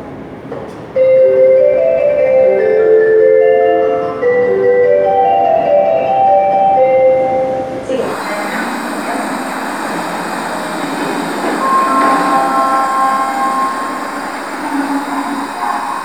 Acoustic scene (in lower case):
subway station